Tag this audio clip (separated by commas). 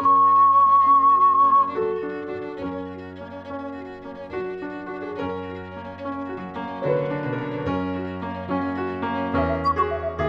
Keyboard (musical), Piano